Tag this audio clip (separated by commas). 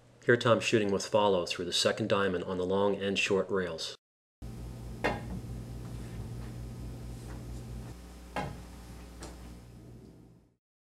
striking pool